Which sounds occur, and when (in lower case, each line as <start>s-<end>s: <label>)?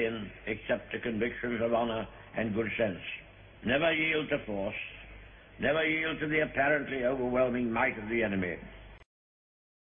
0.0s-9.0s: background noise
5.6s-8.6s: man speaking